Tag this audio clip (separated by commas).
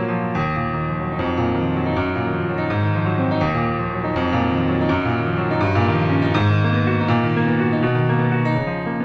Tender music, Music